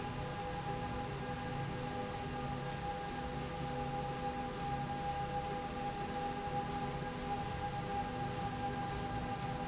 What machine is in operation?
slide rail